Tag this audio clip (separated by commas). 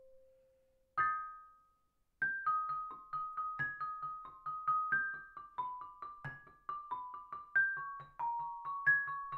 playing glockenspiel